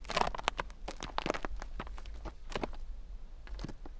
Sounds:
Animal, livestock

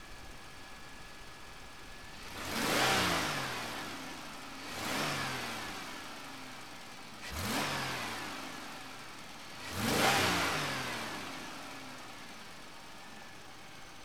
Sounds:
revving, Engine

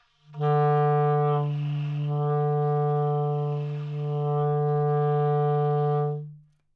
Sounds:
Wind instrument, Musical instrument, Music

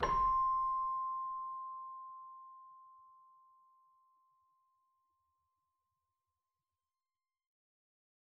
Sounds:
Musical instrument, Keyboard (musical), Music

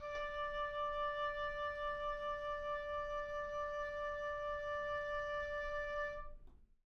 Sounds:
Musical instrument, Music, woodwind instrument

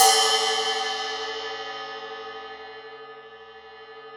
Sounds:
Percussion, Music, Musical instrument, Crash cymbal, Cymbal

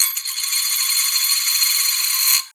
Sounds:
Domestic sounds, Coin (dropping)

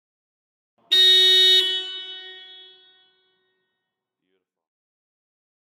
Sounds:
Alarm, honking, Vehicle, Car, Motor vehicle (road)

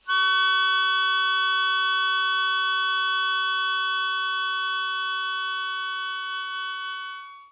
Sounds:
Music, Musical instrument, Harmonica

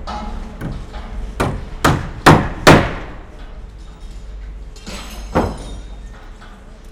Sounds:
Hammer, Tools

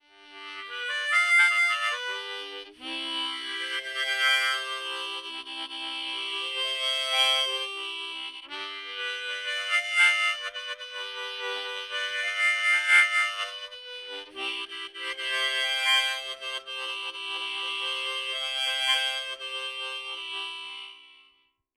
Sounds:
Musical instrument, Harmonica, Music

